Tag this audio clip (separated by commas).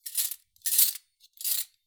Cutlery, home sounds